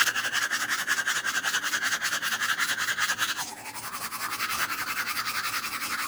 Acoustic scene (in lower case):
restroom